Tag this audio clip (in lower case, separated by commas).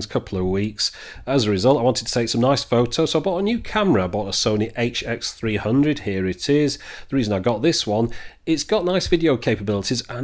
speech